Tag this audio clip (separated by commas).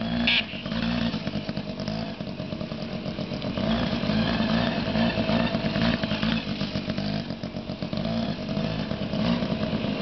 outside, urban or man-made